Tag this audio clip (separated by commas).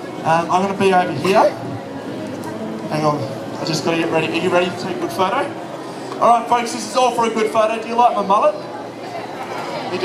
Speech